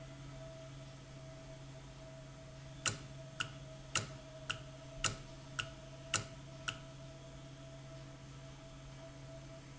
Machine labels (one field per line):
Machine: valve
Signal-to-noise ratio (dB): 6 dB